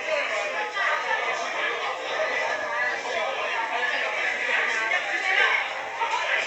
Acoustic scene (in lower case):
crowded indoor space